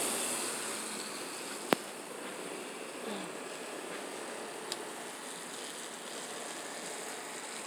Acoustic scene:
residential area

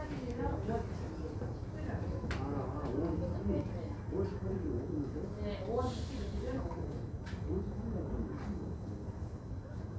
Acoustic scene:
crowded indoor space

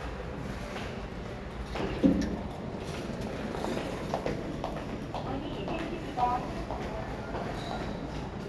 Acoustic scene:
elevator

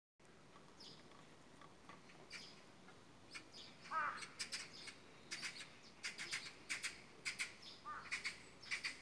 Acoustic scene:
park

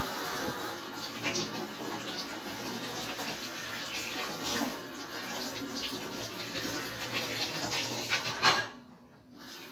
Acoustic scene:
kitchen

